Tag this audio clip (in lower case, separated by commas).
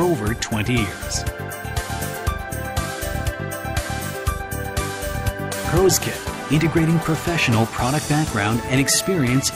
speech, music